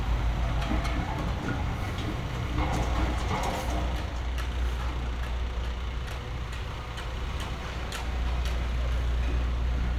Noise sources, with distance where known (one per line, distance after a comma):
unidentified impact machinery